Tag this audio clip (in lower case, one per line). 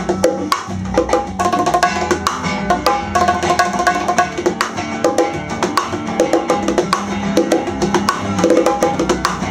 playing bongo